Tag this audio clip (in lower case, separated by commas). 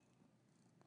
animal, pets, purr, cat